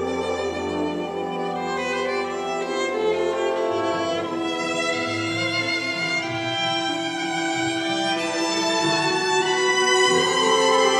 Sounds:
fiddle, Pizzicato, Musical instrument, Music

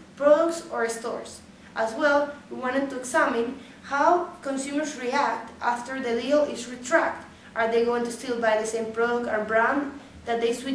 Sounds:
Speech

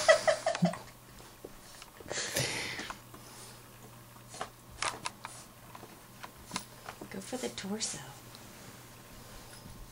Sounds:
Speech

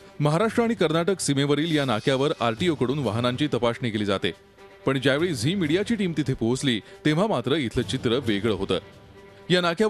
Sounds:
Speech, Music

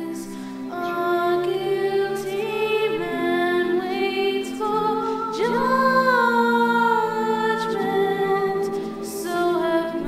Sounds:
Music, Lullaby

